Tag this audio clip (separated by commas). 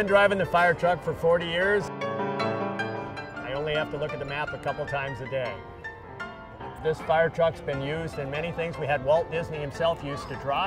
Speech, Music